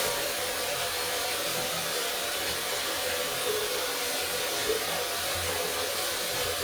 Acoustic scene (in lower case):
restroom